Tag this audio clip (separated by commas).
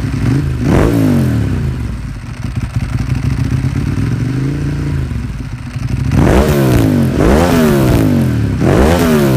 Motorcycle, Vehicle